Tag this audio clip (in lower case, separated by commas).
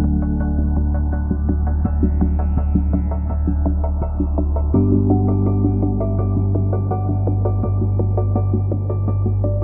music